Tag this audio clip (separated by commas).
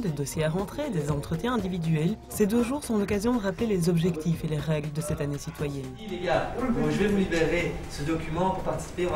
Speech, Music